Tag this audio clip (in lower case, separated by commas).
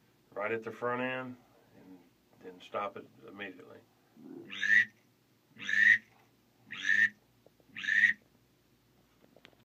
speech